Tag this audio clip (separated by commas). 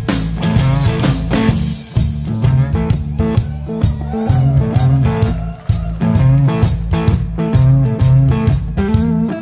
Guitar, Music